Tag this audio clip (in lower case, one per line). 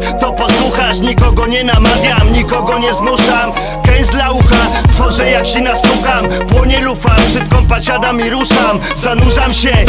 music